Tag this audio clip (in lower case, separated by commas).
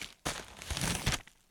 crinkling